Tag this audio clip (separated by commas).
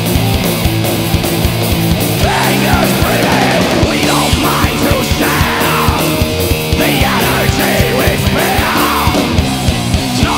Music